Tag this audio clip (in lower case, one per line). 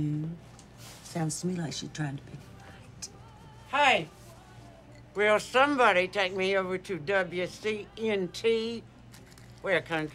speech
music